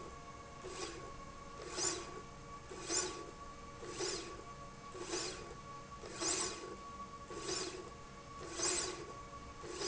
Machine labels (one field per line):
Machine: slide rail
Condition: normal